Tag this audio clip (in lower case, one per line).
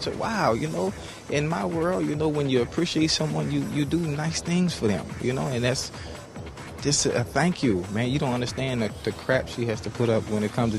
speech
music